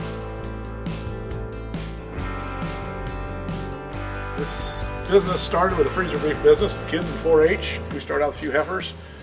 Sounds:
music, speech

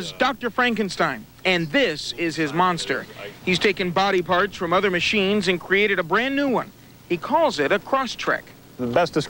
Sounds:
speech

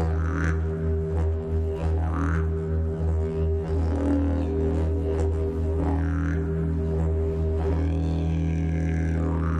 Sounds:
music, didgeridoo

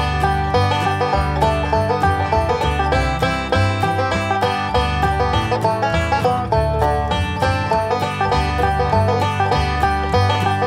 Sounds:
music

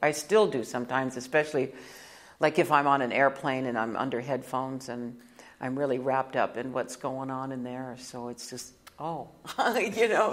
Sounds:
speech

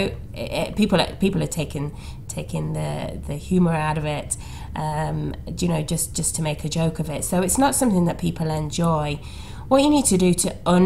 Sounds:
speech

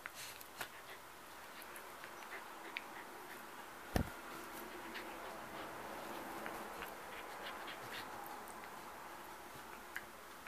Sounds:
dog, domestic animals, animal, inside a small room

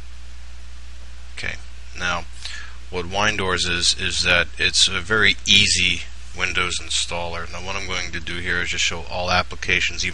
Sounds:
speech

